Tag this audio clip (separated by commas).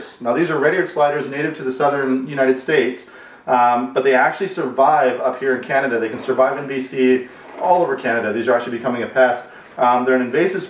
Speech